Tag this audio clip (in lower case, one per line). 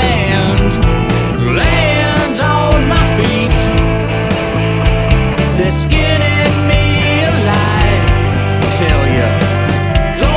music